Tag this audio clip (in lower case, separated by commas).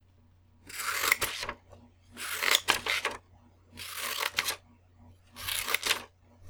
domestic sounds, scissors